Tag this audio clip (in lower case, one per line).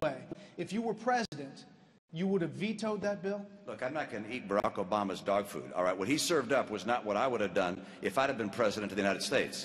speech